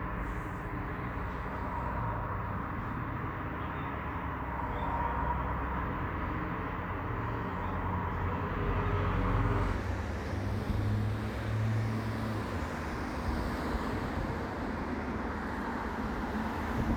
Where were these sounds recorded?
on a street